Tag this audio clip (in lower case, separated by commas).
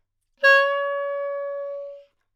music, wind instrument, musical instrument